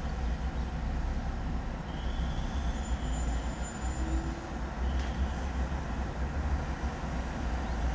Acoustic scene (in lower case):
residential area